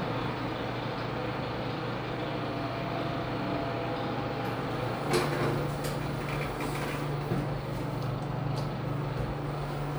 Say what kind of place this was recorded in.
elevator